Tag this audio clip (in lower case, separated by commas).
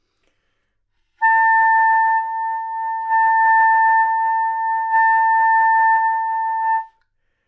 musical instrument, wind instrument, music